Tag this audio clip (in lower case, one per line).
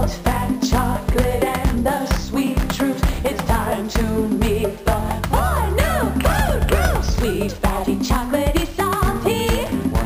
music
exciting music